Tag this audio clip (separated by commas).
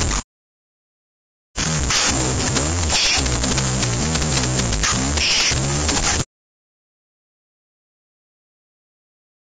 Music